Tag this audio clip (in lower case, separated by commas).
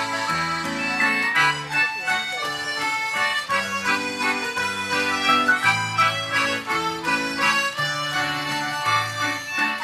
speech, music